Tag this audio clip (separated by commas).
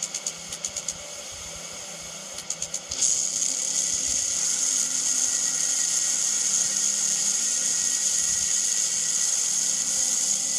outside, urban or man-made